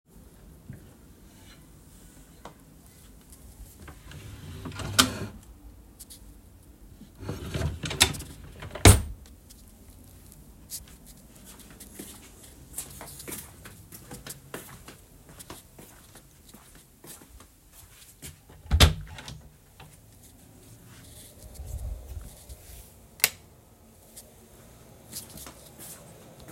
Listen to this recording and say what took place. I carried my phone while walking to the wardrobe and opening it to pick out clothes. I opened and closed a drawer to get socks. I then walked to the bedroom door, turned off the light switch, and closed the door behind me.